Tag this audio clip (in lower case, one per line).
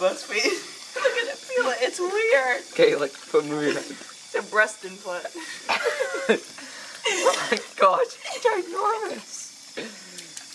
speech